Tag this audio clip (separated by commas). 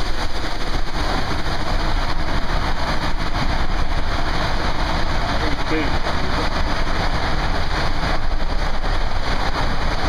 Speech, Gurgling